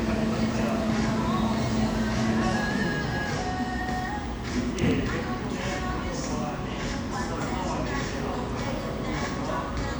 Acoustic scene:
cafe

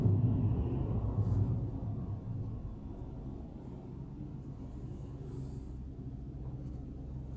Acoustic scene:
car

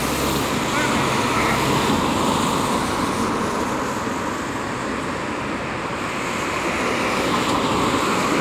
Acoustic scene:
street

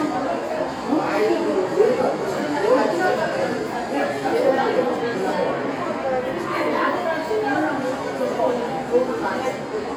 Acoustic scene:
crowded indoor space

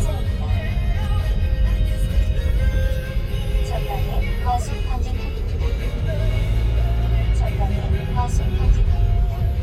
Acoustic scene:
car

